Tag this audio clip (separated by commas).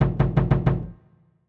Knock, home sounds, Door